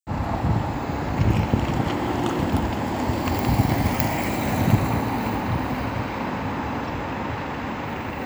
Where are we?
on a street